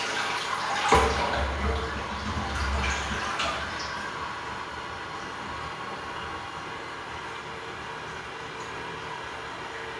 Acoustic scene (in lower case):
restroom